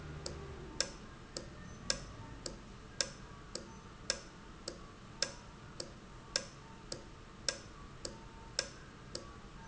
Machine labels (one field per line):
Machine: valve